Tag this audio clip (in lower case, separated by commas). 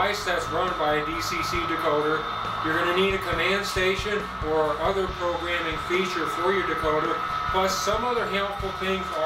music, speech